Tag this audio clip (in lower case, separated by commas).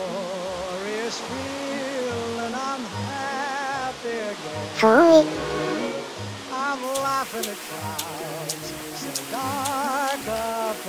music, male singing